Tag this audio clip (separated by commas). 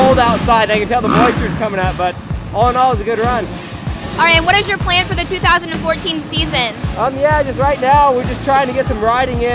Music, Motorcycle, Vehicle